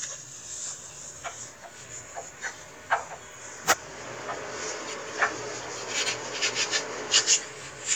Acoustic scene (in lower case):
kitchen